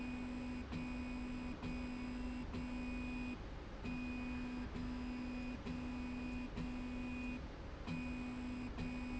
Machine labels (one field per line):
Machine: slide rail